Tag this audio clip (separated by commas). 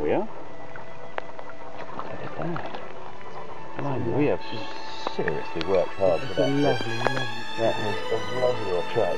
Stream, Speech, Music